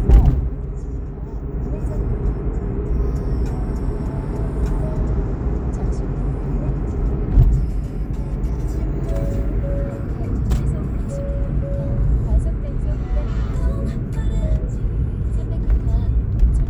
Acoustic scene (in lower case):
car